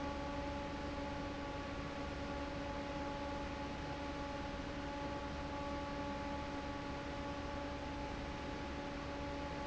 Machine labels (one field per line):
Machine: fan